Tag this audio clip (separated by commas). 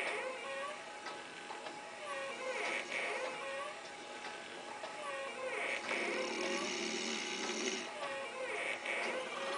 inside a small room